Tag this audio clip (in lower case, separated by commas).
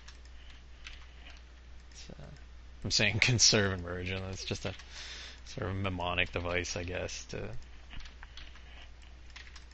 typing